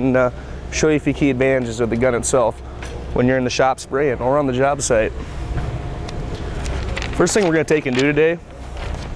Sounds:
Speech

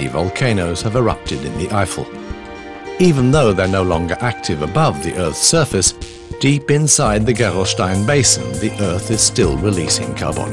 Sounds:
Music, Speech

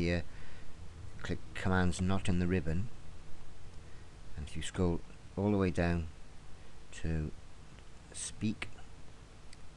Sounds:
Speech

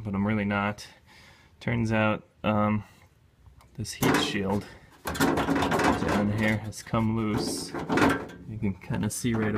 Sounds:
Speech

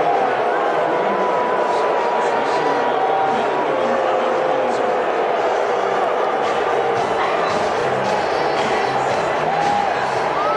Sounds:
people booing

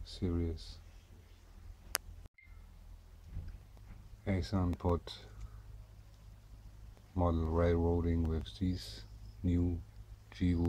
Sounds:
Speech

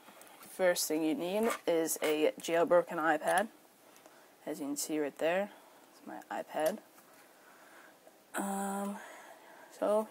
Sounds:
Speech

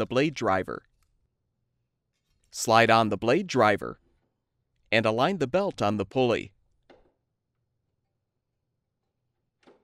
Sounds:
Speech synthesizer, Speech

